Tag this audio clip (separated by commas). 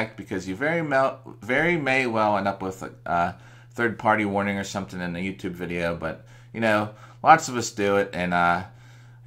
Speech